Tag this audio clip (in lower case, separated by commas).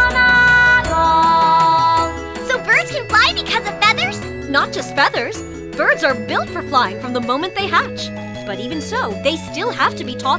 music for children, child speech, music, speech